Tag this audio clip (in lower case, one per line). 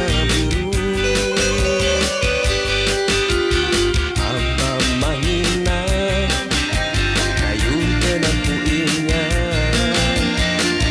music